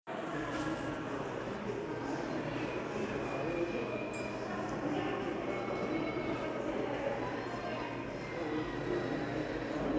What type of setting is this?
crowded indoor space